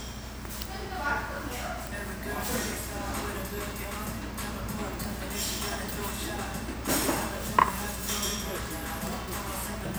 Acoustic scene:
restaurant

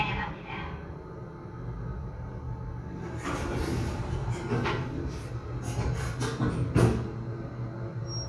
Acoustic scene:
elevator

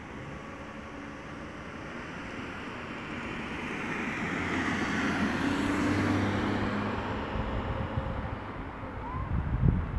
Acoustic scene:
street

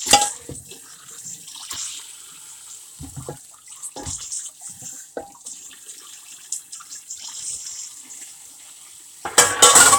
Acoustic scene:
kitchen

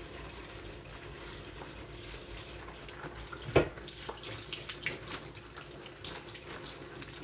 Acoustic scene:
kitchen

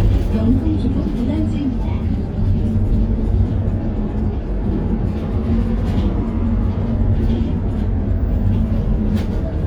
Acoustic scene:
bus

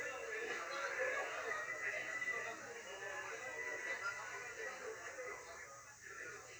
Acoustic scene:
restaurant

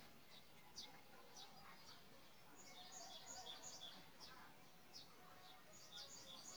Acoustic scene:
park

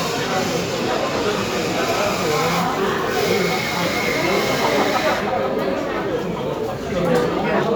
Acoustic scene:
cafe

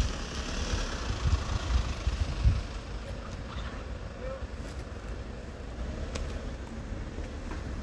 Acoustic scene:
residential area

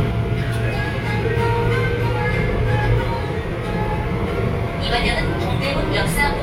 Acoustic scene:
subway train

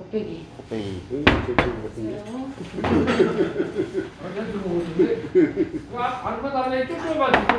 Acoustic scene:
restaurant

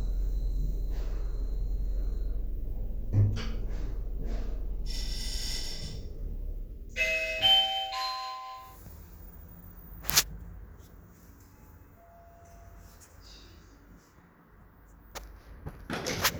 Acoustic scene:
elevator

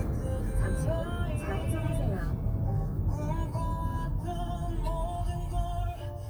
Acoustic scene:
car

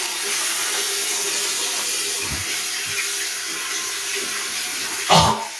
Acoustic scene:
restroom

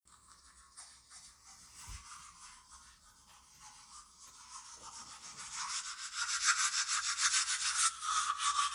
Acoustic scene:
restroom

